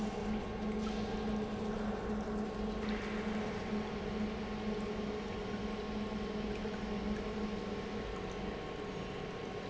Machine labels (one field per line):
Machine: pump